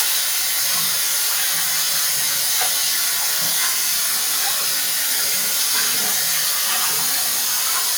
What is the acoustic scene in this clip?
restroom